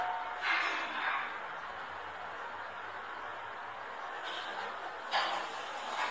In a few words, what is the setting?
elevator